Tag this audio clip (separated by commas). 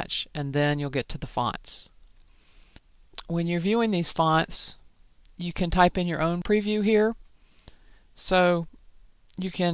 inside a small room, Speech, Clicking